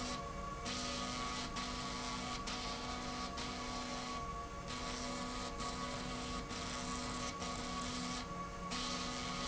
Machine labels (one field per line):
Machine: slide rail